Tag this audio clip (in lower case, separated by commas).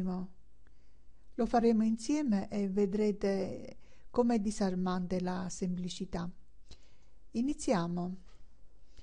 speech